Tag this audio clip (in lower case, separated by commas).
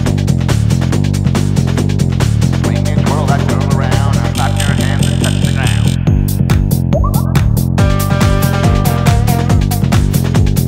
exciting music, dance music, music